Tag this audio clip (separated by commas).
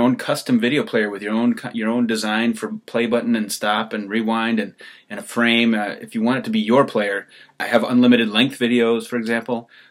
Speech